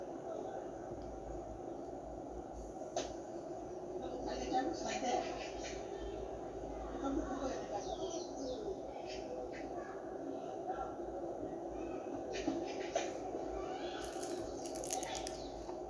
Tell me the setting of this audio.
park